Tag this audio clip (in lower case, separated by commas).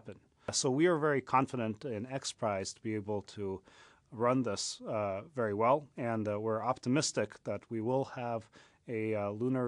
speech, man speaking, monologue